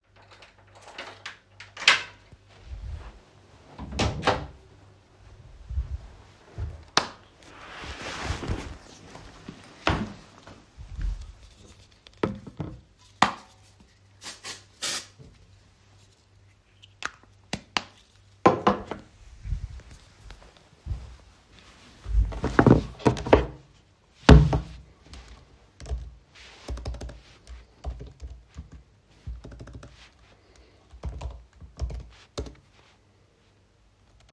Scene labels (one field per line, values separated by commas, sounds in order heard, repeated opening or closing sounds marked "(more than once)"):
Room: living room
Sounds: keys, door (more than once), footsteps, light switch, keyboard typing